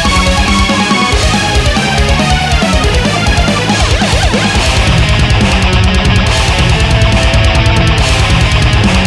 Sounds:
Video game music, Music

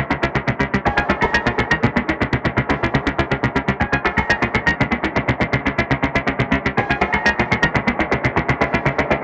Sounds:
Music

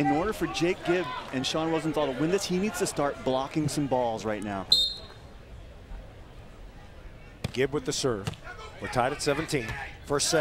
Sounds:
Speech

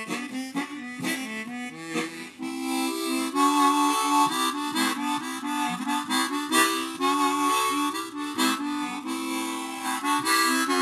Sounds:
Harmonica, Music

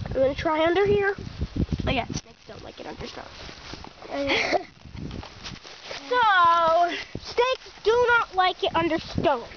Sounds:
Speech

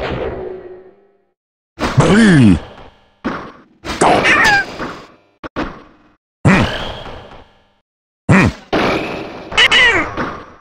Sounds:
thwack

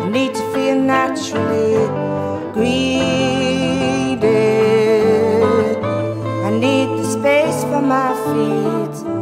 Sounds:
Music

